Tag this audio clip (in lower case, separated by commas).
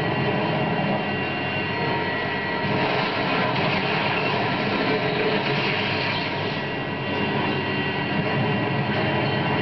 vehicle